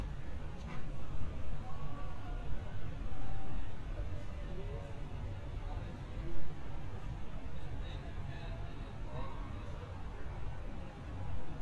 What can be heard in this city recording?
person or small group talking